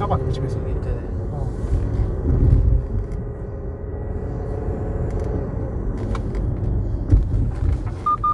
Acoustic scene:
car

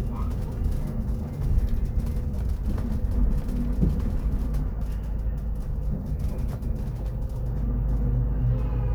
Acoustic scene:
bus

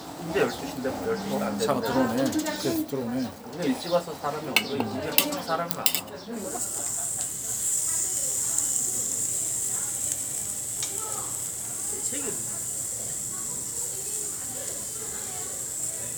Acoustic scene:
restaurant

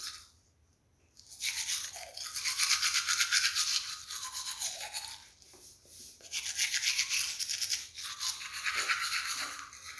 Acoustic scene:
restroom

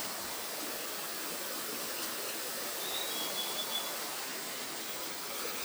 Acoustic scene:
park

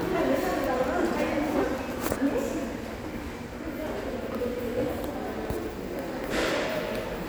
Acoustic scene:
subway station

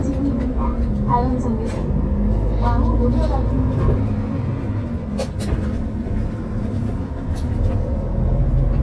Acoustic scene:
bus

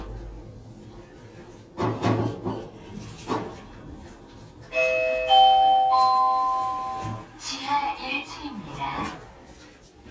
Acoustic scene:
elevator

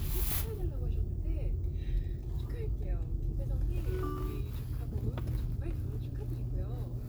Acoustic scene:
car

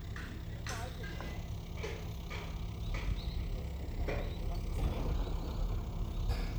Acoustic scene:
residential area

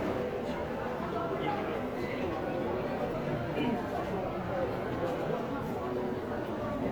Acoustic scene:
crowded indoor space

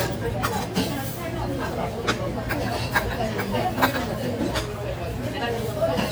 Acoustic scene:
restaurant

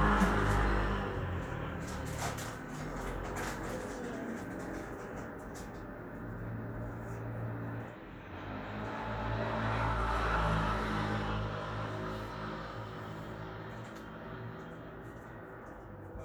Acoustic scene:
street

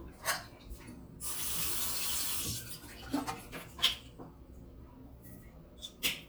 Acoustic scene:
restroom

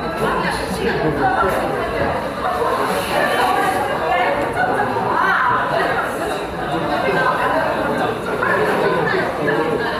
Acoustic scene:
cafe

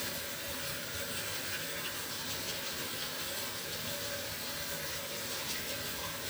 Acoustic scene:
restroom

